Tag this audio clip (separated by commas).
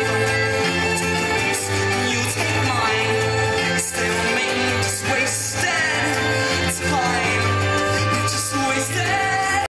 Music